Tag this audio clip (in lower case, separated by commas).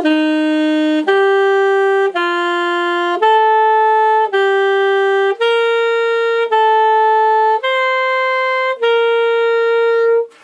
playing saxophone